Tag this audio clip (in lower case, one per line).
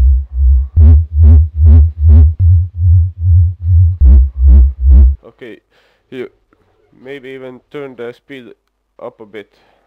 speech
dubstep
music
electronic music